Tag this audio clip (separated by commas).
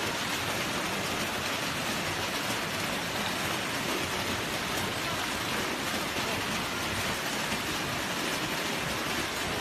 Rain on surface